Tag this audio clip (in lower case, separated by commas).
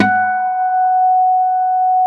acoustic guitar, plucked string instrument, guitar, music, musical instrument